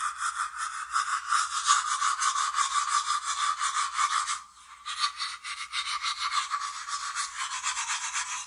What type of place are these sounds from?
restroom